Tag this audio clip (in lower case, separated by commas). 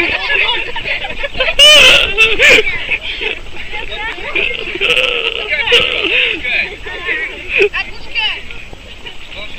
speech, outside, rural or natural